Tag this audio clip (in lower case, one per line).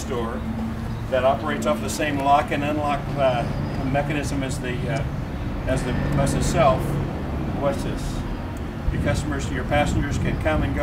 speech